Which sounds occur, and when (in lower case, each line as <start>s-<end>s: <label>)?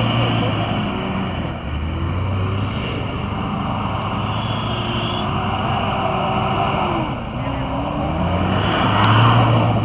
0.0s-0.8s: human sounds
0.0s-9.8s: revving
0.0s-9.8s: motor vehicle (road)
4.4s-5.3s: vehicle horn
5.9s-7.1s: human sounds
9.3s-9.8s: human sounds